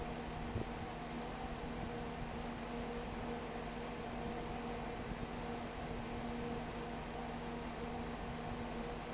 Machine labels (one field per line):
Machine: fan